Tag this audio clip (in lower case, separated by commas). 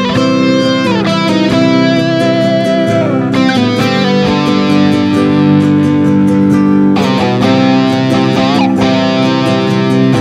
slide guitar, guitar, music, musical instrument, plucked string instrument